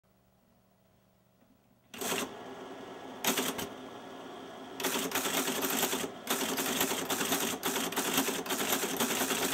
Someone is typing on a mechanical typewriter